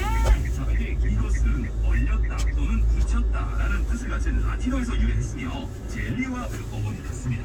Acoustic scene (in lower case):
car